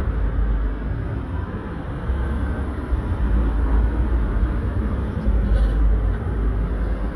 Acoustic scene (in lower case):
street